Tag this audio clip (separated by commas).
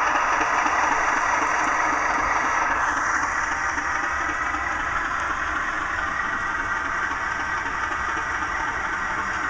Train, Air horn